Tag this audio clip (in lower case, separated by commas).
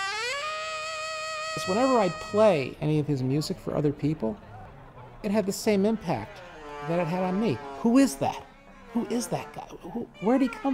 music, speech